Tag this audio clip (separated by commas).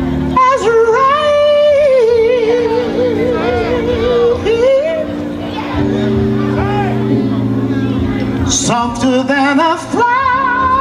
Music, Speech